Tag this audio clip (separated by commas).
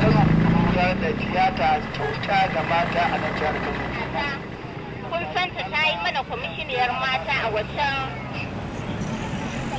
Speech